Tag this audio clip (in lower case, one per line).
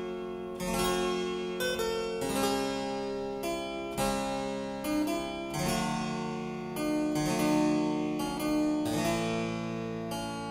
harpsichord
music